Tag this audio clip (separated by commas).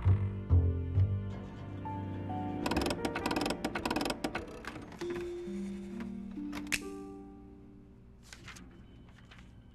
Music, Tick-tock